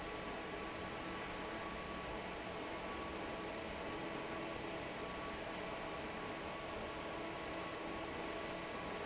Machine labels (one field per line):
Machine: fan